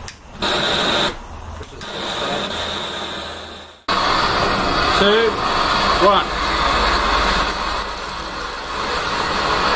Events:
0.0s-0.1s: tick
0.0s-3.8s: mechanisms
0.3s-1.2s: fire
1.5s-1.8s: male speech
1.6s-1.7s: tick
1.8s-9.7s: fire
2.2s-2.5s: male speech
4.9s-5.3s: male speech
5.9s-6.3s: male speech

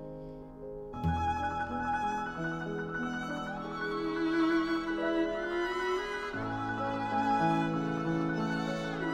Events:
0.0s-0.5s: breathing
0.0s-9.1s: music

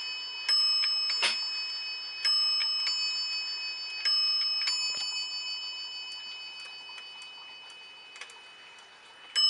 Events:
0.0s-9.4s: bell
0.8s-0.9s: tick
1.0s-1.4s: generic impact sounds
1.6s-1.7s: tick
2.6s-2.6s: tick
2.8s-2.9s: tick
4.4s-4.4s: tick
4.6s-4.7s: tick
4.9s-5.0s: tick
5.7s-5.8s: tick
6.1s-6.2s: tick
6.5s-6.7s: tick
6.9s-7.0s: tick
7.2s-7.3s: tick
7.6s-7.7s: tick
8.1s-8.3s: tick
8.7s-8.8s: tick

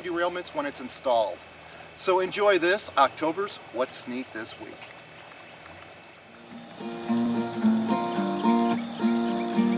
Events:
0.0s-1.3s: male speech
0.0s-9.7s: wind
1.5s-2.2s: trickle
1.6s-1.9s: breathing
1.8s-4.7s: male speech
3.3s-6.8s: trickle
6.1s-6.3s: boat
6.4s-9.7s: music
6.8s-9.7s: bird song
7.9s-8.1s: boat
8.3s-8.6s: boat
8.7s-8.8s: boat
9.0s-9.2s: boat
9.4s-9.4s: boat
9.7s-9.7s: boat

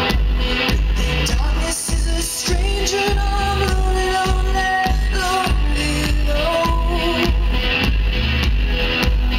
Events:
0.0s-9.3s: music
1.3s-4.8s: female singing
5.1s-7.5s: female singing

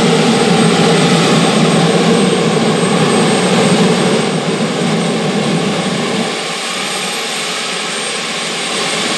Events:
0.0s-9.1s: jet engine

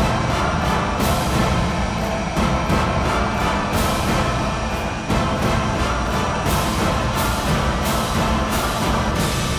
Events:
0.0s-9.1s: mechanisms
0.0s-9.5s: music

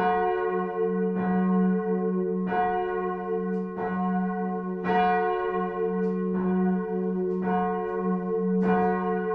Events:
0.0s-9.3s: church bell
3.4s-3.6s: tick
5.9s-6.1s: tick
7.2s-7.4s: tick
7.7s-7.9s: tick
8.5s-8.7s: tick

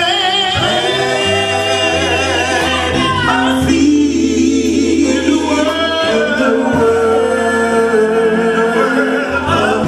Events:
0.0s-9.8s: choir
0.0s-9.8s: music

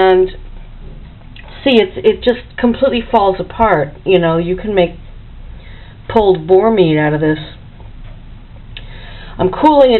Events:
0.0s-0.4s: female speech
0.0s-9.9s: mechanisms
1.3s-1.7s: breathing
1.6s-4.9s: female speech
5.5s-6.0s: breathing
6.0s-7.6s: female speech
8.8s-9.4s: breathing
9.4s-9.9s: female speech

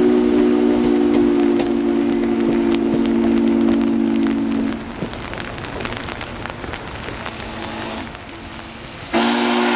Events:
0.0s-4.8s: train horn
0.0s-9.7s: rain on surface
7.3s-8.1s: train horn
9.1s-9.7s: train horn

